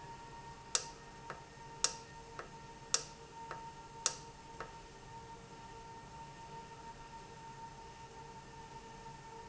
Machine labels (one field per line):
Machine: valve